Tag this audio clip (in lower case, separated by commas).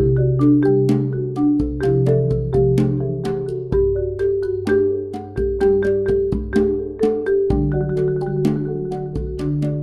musical instrument, xylophone, marimba, percussion, music